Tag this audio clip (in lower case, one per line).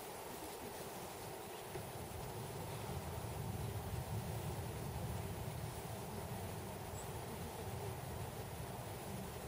outside, rural or natural
snake
animal